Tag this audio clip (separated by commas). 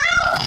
Domestic animals, Cat, Animal